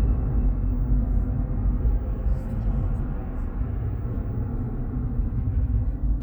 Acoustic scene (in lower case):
car